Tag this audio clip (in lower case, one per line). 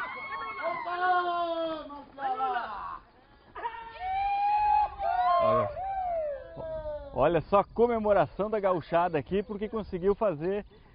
speech